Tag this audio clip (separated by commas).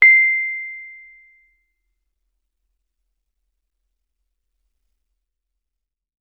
Music, Musical instrument, Piano, Keyboard (musical)